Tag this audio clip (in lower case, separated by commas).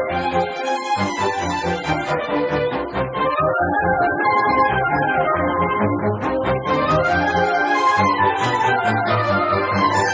music